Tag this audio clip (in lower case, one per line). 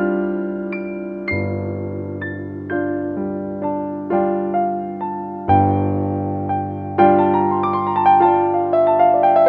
new-age music
background music
music